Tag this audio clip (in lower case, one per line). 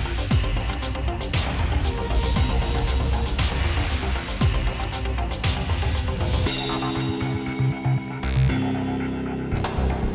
music